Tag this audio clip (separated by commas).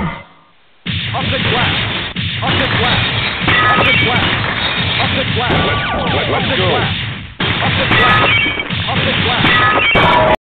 Speech